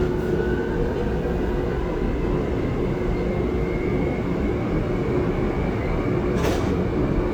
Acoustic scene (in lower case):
subway train